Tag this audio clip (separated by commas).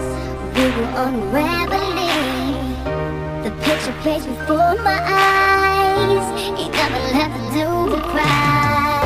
Background music, Soul music, Music